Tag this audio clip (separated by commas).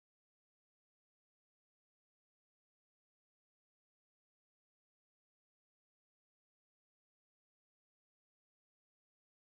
Silence